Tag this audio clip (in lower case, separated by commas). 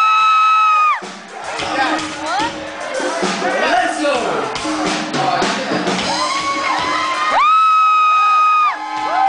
speech, music